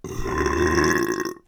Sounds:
Burping

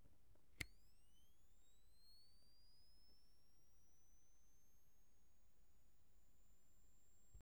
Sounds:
Mechanisms, Camera

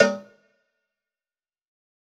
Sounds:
Cowbell, Bell

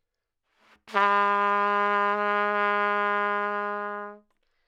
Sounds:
Music, Brass instrument, Musical instrument, Trumpet

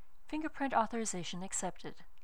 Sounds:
Speech, Human voice, Female speech

